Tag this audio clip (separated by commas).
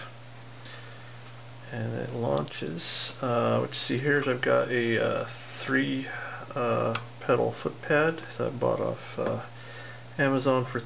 Speech